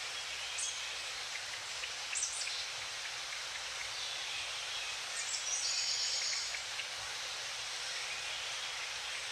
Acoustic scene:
park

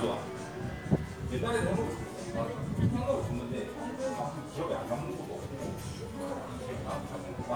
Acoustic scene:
crowded indoor space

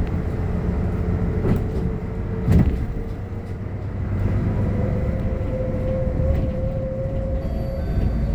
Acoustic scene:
bus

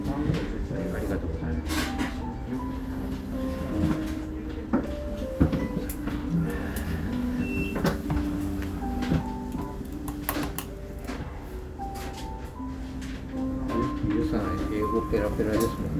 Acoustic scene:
restaurant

